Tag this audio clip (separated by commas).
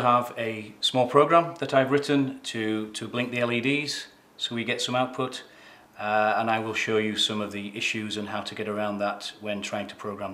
Speech